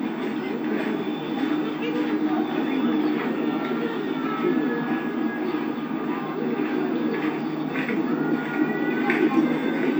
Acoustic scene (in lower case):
park